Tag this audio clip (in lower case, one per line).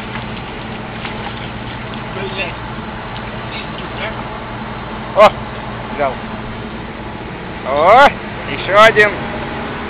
vehicle
outside, rural or natural
speech